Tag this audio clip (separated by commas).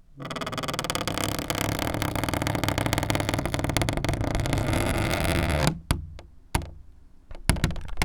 Squeak